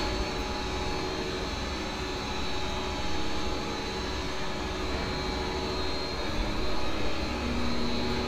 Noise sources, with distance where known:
unidentified impact machinery

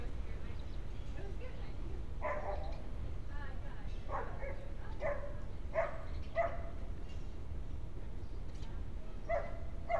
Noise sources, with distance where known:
person or small group talking
dog barking or whining, near

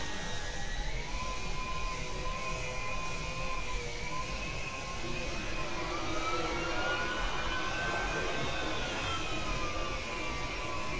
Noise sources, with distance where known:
small or medium rotating saw

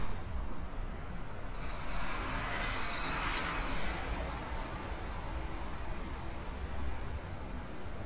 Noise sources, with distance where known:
large-sounding engine, near

